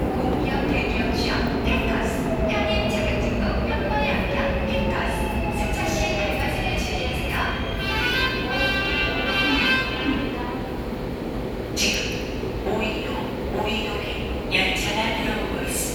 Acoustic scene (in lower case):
subway station